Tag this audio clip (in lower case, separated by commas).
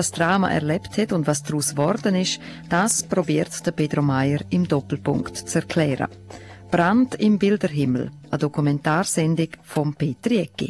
music, speech